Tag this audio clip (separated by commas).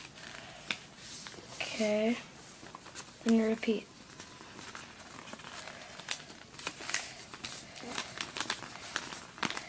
Speech, Rattle